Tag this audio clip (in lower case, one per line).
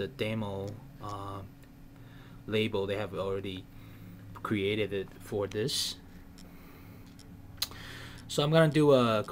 speech